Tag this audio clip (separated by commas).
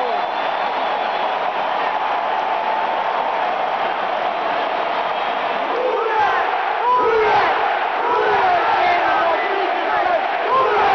Speech